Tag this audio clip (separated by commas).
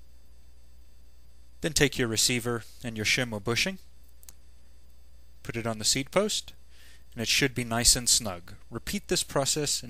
Speech